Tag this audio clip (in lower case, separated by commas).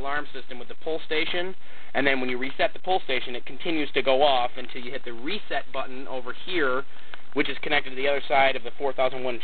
speech